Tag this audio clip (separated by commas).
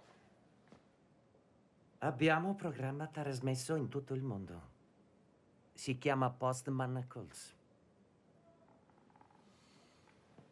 Speech